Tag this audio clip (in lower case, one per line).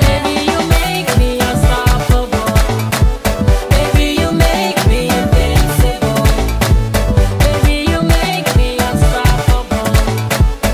music